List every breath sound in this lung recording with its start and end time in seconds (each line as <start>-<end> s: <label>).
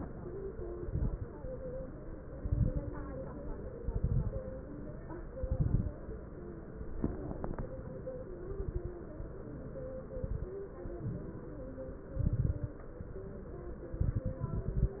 0.66-1.25 s: exhalation
0.66-1.25 s: crackles
2.34-2.92 s: exhalation
2.34-2.92 s: crackles
3.84-4.42 s: exhalation
3.84-4.42 s: crackles
5.36-5.95 s: exhalation
5.36-5.95 s: crackles
7.03-7.62 s: exhalation
7.03-7.62 s: crackles
8.42-9.01 s: exhalation
8.42-9.01 s: crackles
10.13-10.56 s: exhalation
10.13-10.56 s: crackles
12.18-12.79 s: exhalation
12.18-12.79 s: crackles
13.95-15.00 s: exhalation
13.95-15.00 s: crackles